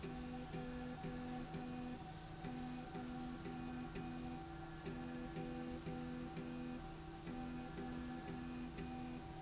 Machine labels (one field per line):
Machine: slide rail